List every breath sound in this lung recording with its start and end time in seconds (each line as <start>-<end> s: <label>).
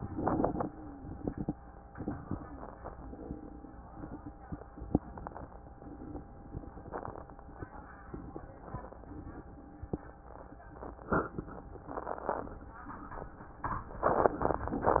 0.00-1.19 s: exhalation
0.66-1.19 s: wheeze